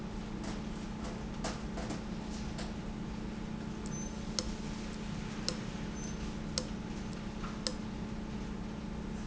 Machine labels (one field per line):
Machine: valve